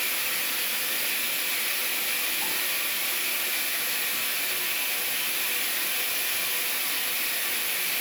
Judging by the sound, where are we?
in a restroom